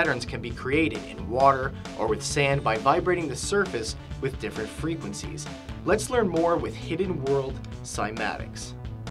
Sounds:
music
speech

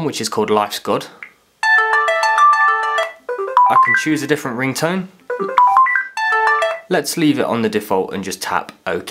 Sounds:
ringtone
telephone

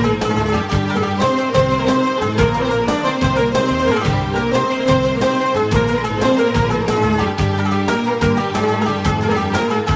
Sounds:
music

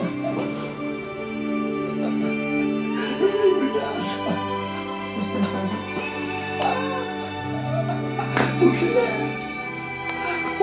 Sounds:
speech
music

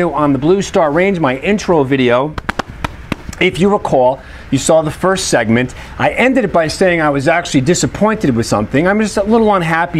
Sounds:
speech

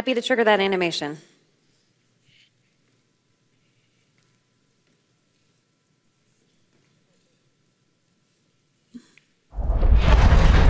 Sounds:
speech

